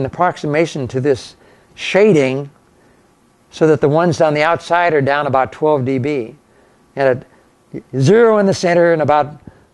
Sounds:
male speech
speech

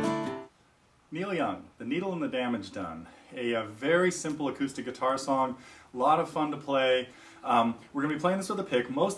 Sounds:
plucked string instrument
acoustic guitar
speech
guitar
musical instrument
strum
music

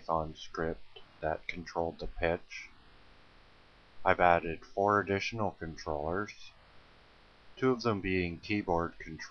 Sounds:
speech

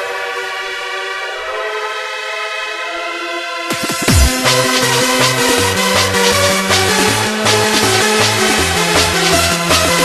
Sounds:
electronic music
music
techno
soundtrack music

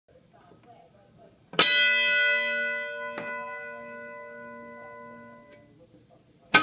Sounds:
speech

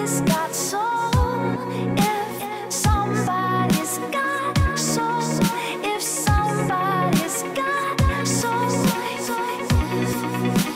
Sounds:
electronic music
music

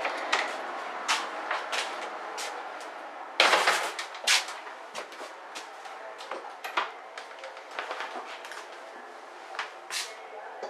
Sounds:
rail transport
railroad car
vehicle
train

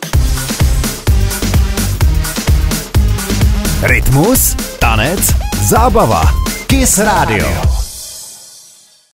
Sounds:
music
speech

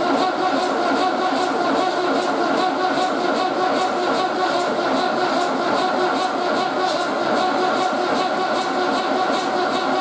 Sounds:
heavy engine (low frequency)

